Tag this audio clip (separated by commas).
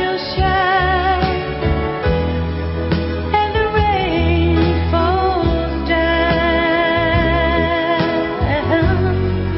Music